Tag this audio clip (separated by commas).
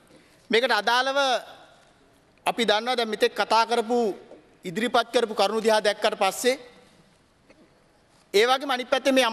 Speech, Narration, man speaking